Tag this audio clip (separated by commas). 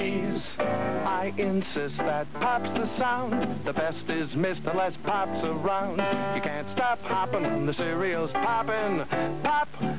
Music